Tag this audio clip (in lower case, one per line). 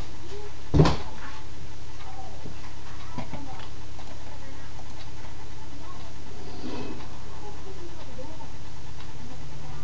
speech